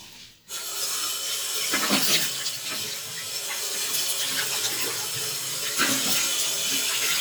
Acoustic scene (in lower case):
restroom